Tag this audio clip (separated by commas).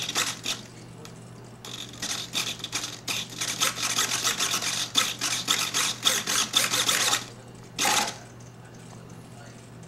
Single-lens reflex camera